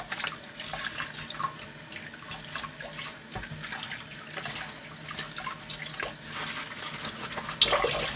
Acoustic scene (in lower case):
kitchen